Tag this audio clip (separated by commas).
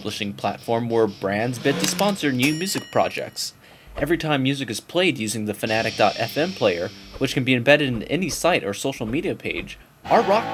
Music, Speech